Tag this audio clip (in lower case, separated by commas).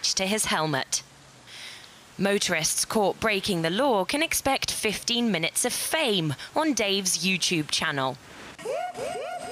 speech